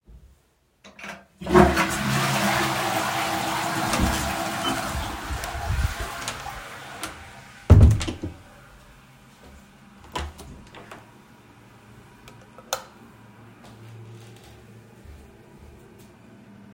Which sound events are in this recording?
toilet flushing, door, light switch, footsteps